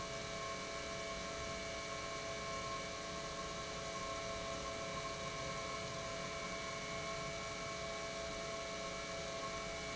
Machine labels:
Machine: pump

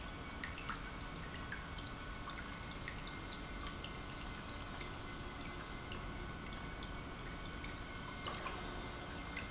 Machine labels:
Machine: pump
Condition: normal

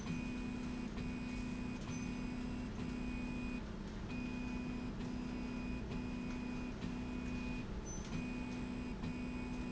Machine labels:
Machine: slide rail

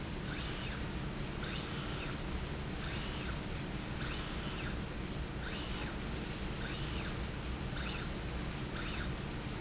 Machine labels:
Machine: slide rail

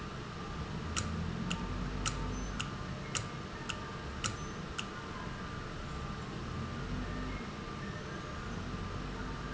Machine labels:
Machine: valve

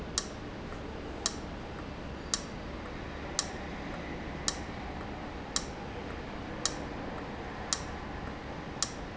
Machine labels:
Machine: valve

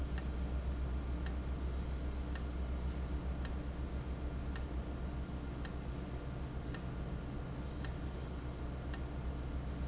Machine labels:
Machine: valve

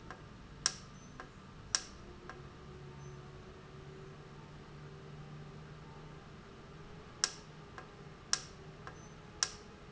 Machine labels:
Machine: valve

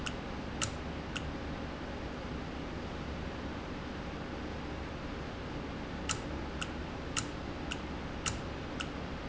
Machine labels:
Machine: valve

